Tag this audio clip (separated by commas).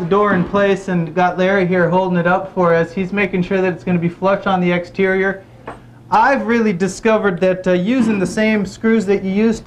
Speech